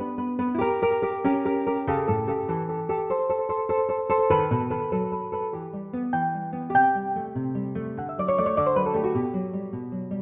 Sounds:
Keyboard (musical), Piano

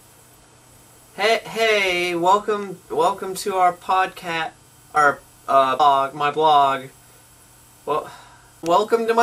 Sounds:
Speech

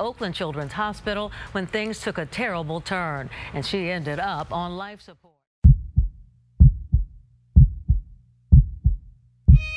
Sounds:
Speech, Music, Heart sounds

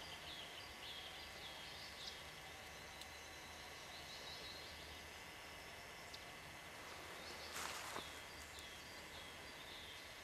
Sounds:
Bird, Animal

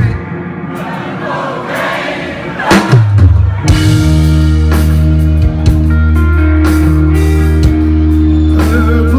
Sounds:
Music

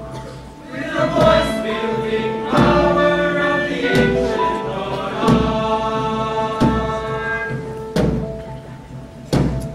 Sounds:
Music, Choir

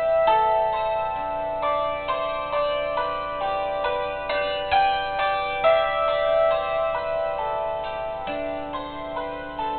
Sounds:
Marimba, Mallet percussion, Glockenspiel

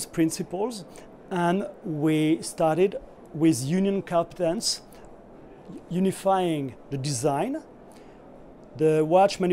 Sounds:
Speech

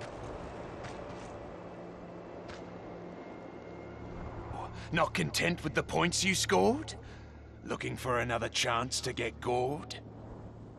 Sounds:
Speech

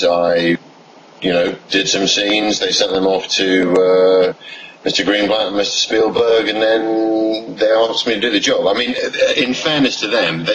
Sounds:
Speech

